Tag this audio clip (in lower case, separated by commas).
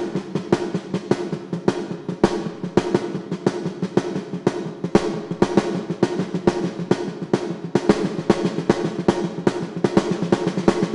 music, musical instrument